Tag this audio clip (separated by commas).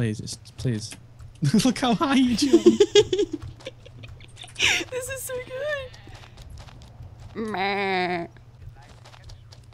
Speech